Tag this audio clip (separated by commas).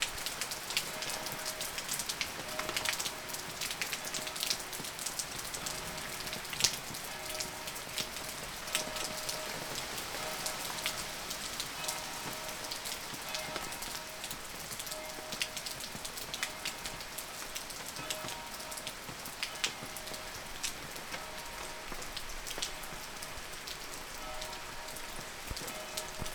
Water, Rain